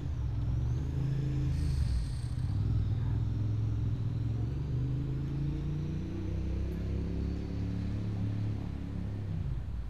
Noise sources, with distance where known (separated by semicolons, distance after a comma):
medium-sounding engine, far